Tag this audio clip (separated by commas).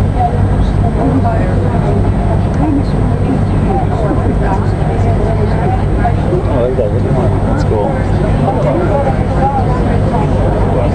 Speech